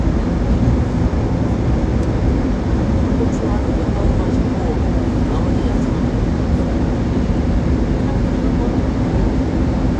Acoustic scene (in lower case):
subway train